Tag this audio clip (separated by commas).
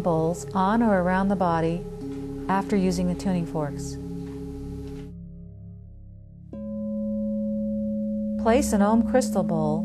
Tuning fork